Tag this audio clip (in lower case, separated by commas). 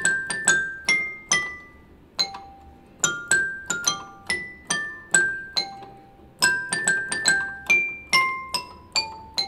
electric piano, music, piano, keyboard (musical), musical instrument